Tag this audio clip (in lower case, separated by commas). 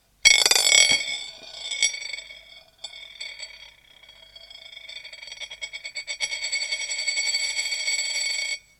home sounds, coin (dropping)